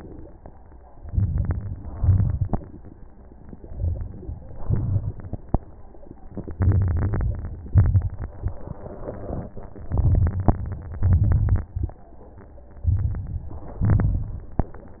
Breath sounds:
0.97-1.91 s: inhalation
0.97-1.92 s: crackles
1.94-2.67 s: crackles
1.96-2.71 s: exhalation
3.67-4.58 s: inhalation
4.63-5.55 s: exhalation
6.53-7.65 s: crackles
6.55-7.67 s: inhalation
7.66-8.78 s: crackles
7.70-8.81 s: exhalation
9.85-10.58 s: crackles
9.90-10.53 s: inhalation
10.98-11.71 s: crackles
11.05-11.67 s: exhalation
12.84-13.86 s: inhalation
13.84-14.63 s: crackles
13.89-14.64 s: exhalation

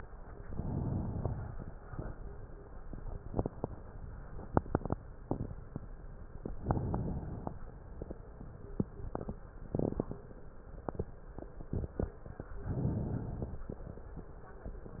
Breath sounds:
0.41-1.67 s: inhalation
0.41-1.67 s: crackles
6.41-7.53 s: inhalation
12.58-13.70 s: inhalation

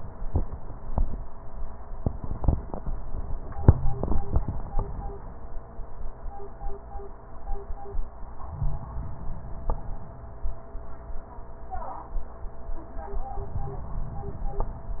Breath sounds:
8.46-10.11 s: inhalation

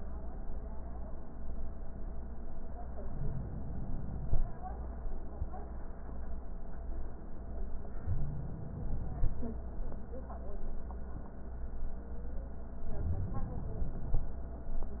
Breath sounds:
3.06-4.48 s: inhalation
8.05-9.47 s: inhalation
12.91-14.34 s: inhalation

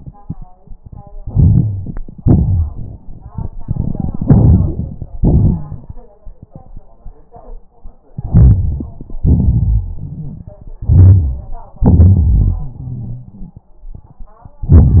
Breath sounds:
1.23-1.96 s: inhalation
2.18-2.96 s: exhalation
3.64-5.08 s: inhalation
5.18-5.83 s: exhalation
8.18-9.16 s: inhalation
9.20-10.51 s: exhalation
9.20-10.51 s: crackles
10.82-11.73 s: inhalation
11.81-13.38 s: exhalation
11.81-13.38 s: crackles

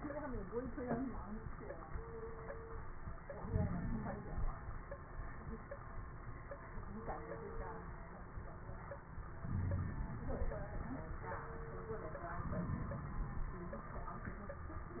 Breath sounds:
3.33-4.54 s: inhalation
3.33-4.54 s: crackles
9.42-9.99 s: wheeze
9.42-10.79 s: inhalation
12.34-13.53 s: inhalation
12.34-13.53 s: crackles

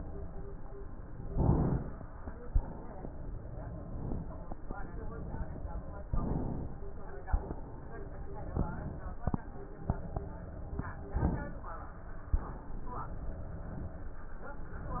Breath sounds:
1.28-2.56 s: inhalation
2.56-3.10 s: exhalation
3.64-4.71 s: inhalation
4.71-5.48 s: exhalation
6.03-6.89 s: inhalation
6.89-7.96 s: exhalation
8.48-9.55 s: inhalation
9.59-10.75 s: exhalation
11.17-12.34 s: inhalation
12.35-13.48 s: exhalation
14.76-15.00 s: inhalation

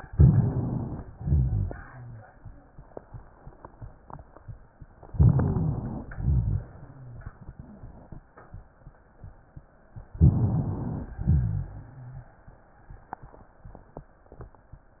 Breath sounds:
0.00-1.04 s: crackles
0.00-1.05 s: inhalation
1.13-1.83 s: exhalation
1.13-1.83 s: rhonchi
5.06-6.10 s: crackles
5.10-6.07 s: inhalation
6.13-6.66 s: rhonchi
6.15-6.64 s: exhalation
10.12-11.14 s: crackles
10.16-11.13 s: inhalation
11.19-12.31 s: exhalation
11.21-12.27 s: rhonchi

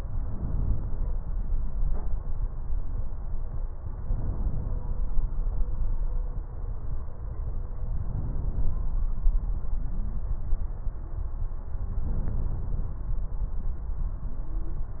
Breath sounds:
0.21-1.29 s: inhalation
4.06-4.94 s: inhalation
8.02-8.89 s: inhalation
12.06-12.93 s: inhalation

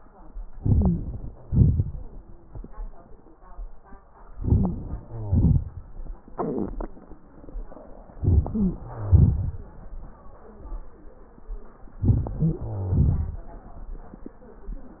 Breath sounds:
0.47-1.38 s: inhalation
0.68-1.06 s: wheeze
1.39-3.03 s: exhalation
4.32-5.06 s: inhalation
4.32-5.06 s: crackles
5.07-6.16 s: exhalation
8.13-8.88 s: inhalation
8.50-8.76 s: wheeze
8.86-10.51 s: exhalation
11.92-12.64 s: inhalation
11.92-12.64 s: crackles
12.62-14.22 s: exhalation

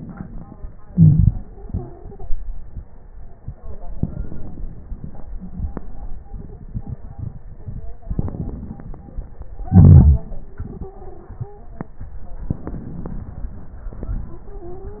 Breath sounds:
0.85-3.58 s: exhalation
1.29-2.33 s: stridor
3.65-6.18 s: inhalation
5.29-5.80 s: stridor
6.17-7.95 s: crackles
6.17-8.00 s: exhalation
7.56-7.83 s: stridor
7.97-9.64 s: inhalation
7.97-9.64 s: crackles
9.65-12.04 s: exhalation
10.43-11.92 s: stridor
12.03-13.87 s: inhalation
13.85-15.00 s: exhalation
14.31-15.00 s: stridor

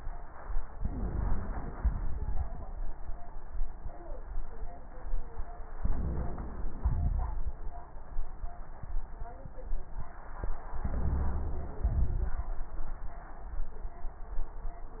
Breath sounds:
0.80-1.73 s: inhalation
0.80-1.73 s: wheeze
1.75-2.68 s: exhalation
1.75-2.69 s: crackles
5.79-6.78 s: inhalation
5.79-6.78 s: wheeze
6.82-7.56 s: exhalation
6.82-7.56 s: crackles
10.83-11.84 s: inhalation
10.83-11.84 s: wheeze
11.86-12.54 s: exhalation
11.86-12.54 s: crackles

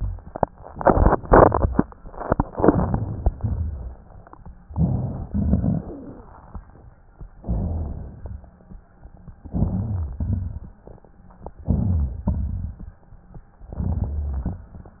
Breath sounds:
4.72-5.26 s: inhalation
4.72-5.26 s: rhonchi
5.29-6.21 s: exhalation
5.29-6.21 s: crackles
7.46-8.16 s: inhalation
7.46-8.16 s: rhonchi
8.20-8.67 s: exhalation
8.20-8.67 s: rhonchi
9.47-10.17 s: inhalation
9.47-10.17 s: rhonchi
10.21-10.76 s: exhalation
10.21-10.76 s: rhonchi
11.69-12.24 s: inhalation
11.69-12.24 s: rhonchi
12.31-12.87 s: exhalation
12.31-12.87 s: rhonchi
13.74-14.57 s: inhalation
13.74-14.57 s: rhonchi

